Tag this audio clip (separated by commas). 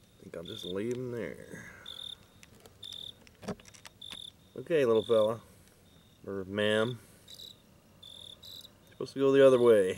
Insect, Speech